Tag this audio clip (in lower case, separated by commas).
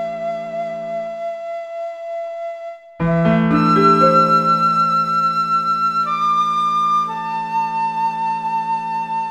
music, tender music